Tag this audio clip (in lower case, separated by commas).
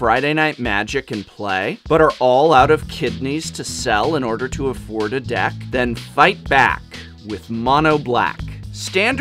music, speech